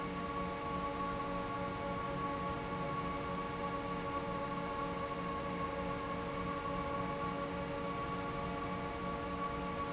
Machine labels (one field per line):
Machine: fan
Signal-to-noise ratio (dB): -6 dB